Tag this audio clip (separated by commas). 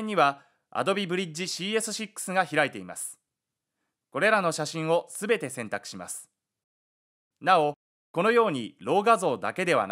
Speech